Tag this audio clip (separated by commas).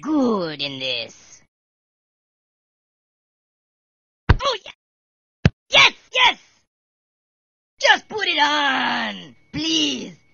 Speech